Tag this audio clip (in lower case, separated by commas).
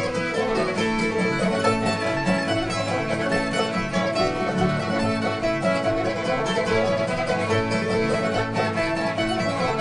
violin, music, musical instrument